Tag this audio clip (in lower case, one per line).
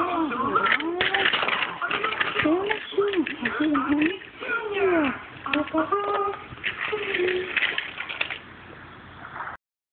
speech